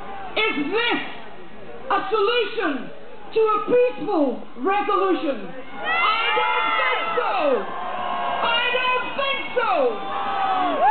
An adult female is speaking and a crowd cheers